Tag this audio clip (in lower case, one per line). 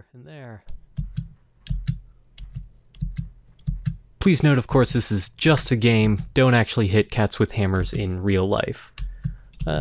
speech